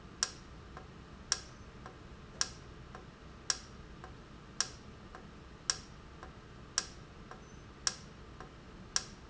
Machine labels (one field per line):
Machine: valve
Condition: normal